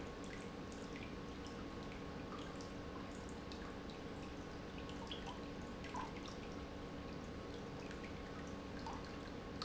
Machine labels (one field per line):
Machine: pump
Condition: normal